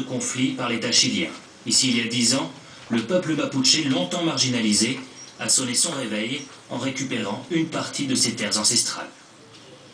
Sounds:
speech

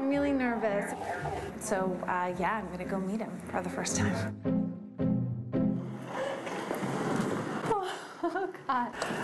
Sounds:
woman speaking

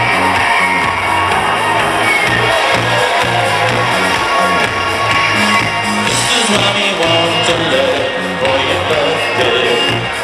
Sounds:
funk, music

